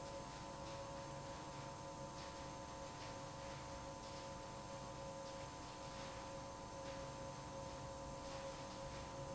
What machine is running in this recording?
pump